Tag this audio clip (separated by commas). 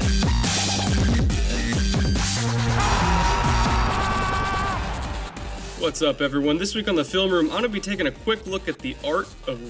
Speech, Music